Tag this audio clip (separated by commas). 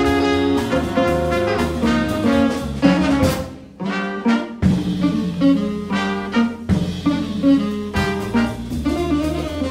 Music, Sound effect